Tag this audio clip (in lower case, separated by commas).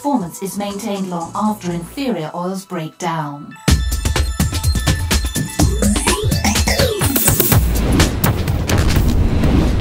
speech, boom, music